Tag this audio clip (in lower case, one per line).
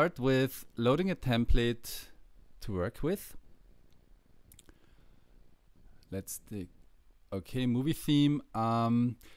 speech